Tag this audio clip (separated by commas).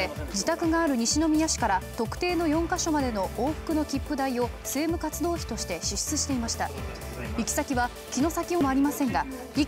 Music, Speech